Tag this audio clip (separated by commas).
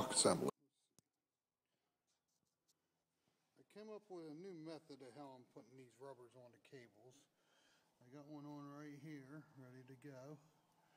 Speech